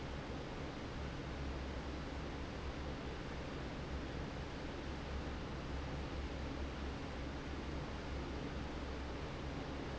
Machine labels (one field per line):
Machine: fan